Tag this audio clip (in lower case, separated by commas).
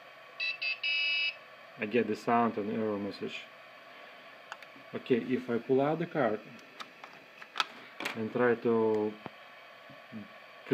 speech